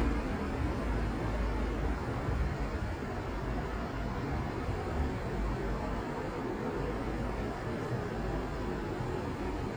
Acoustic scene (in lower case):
street